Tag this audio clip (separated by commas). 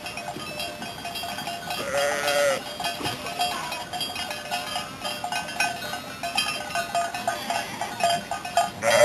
Sheep